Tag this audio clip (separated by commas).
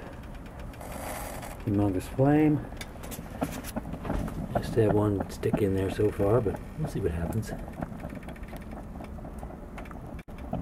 Speech